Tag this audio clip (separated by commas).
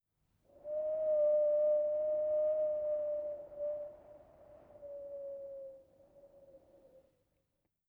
Wind